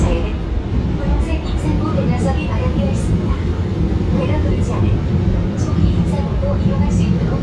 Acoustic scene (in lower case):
subway train